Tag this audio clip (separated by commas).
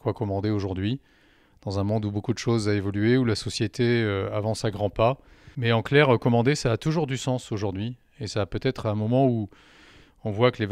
Speech